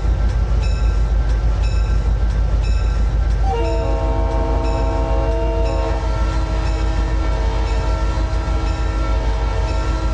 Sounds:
outside, urban or man-made

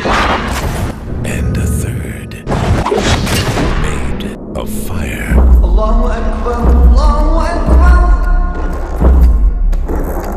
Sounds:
Boom, Music, Speech

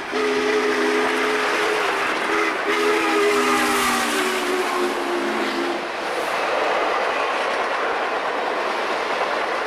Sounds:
Train, Vehicle, train horning, Train whistle, Train horn

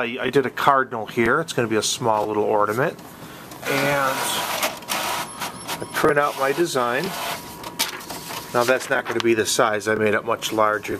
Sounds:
Speech

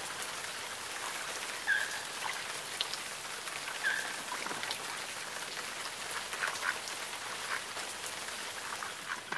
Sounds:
Duck, Quack

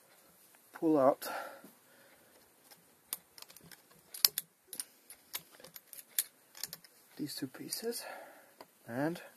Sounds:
Speech

